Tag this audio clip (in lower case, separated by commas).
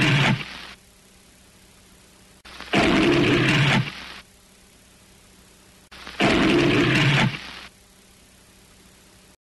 animal, roar